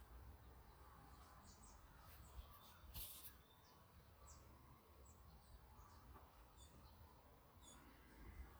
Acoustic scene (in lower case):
park